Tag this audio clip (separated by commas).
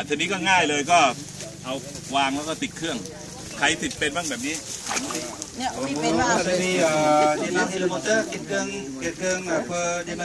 Speech